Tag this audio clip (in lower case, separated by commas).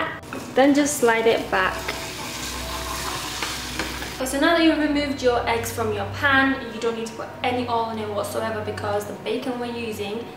speech, inside a small room, music